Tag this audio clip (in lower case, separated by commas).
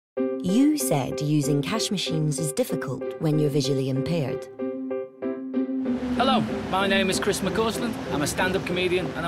music, speech, outside, urban or man-made